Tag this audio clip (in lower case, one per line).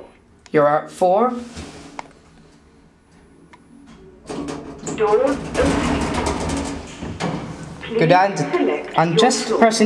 speech